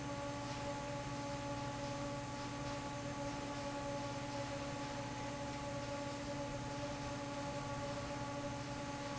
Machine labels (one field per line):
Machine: fan